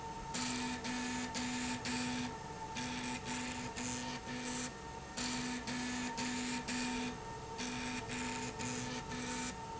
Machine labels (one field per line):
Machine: slide rail